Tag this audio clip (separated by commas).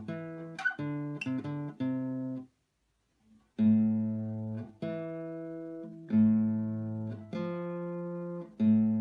Musical instrument, Bowed string instrument, Music, Guitar, Acoustic guitar, Plucked string instrument